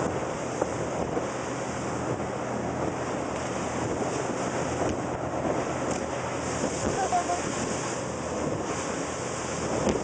Wind blowing by and water splashes